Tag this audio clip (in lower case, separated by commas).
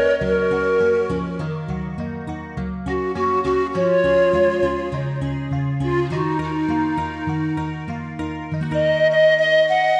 music